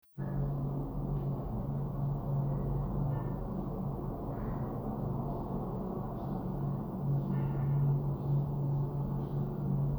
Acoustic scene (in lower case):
elevator